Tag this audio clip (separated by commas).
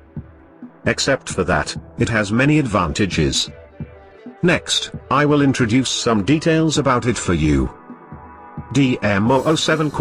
Speech, Music